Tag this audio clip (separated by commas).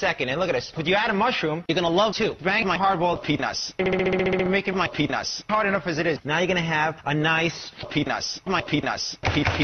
Speech